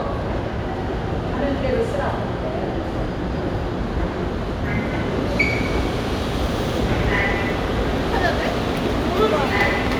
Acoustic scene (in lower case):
subway station